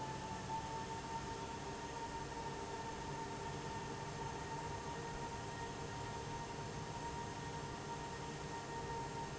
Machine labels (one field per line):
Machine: fan